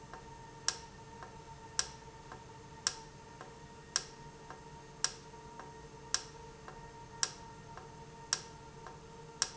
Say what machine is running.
valve